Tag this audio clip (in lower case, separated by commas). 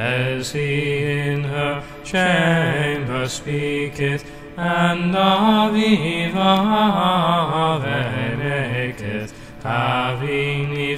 mantra, music